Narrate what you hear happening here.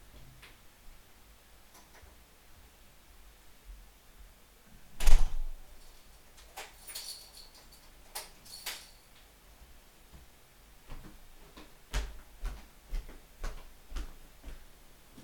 I opened the door, came inside, closed the door and locked it with the keys. I walked to the desk.